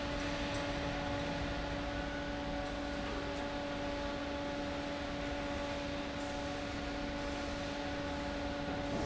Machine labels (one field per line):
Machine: fan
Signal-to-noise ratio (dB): -6 dB